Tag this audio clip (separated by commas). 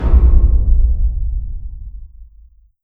Explosion, Boom